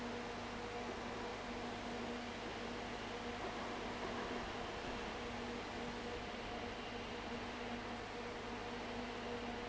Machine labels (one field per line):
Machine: fan